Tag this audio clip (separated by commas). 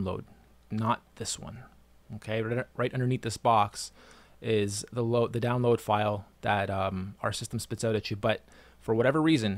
Speech